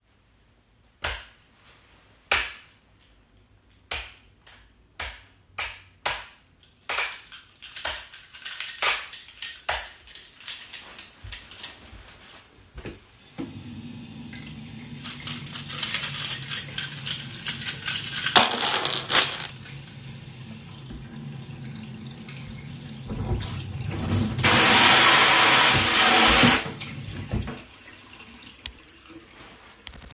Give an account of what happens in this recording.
I turn on the lights look for my keys and turn on the tap